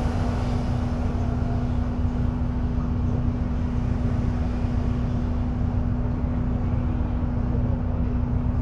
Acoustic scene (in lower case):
bus